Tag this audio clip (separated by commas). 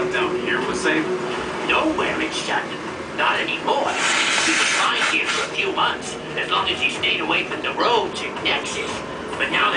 Speech